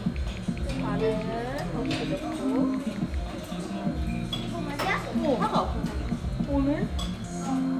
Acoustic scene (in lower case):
crowded indoor space